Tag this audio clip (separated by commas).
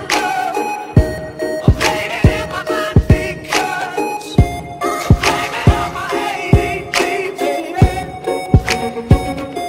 Music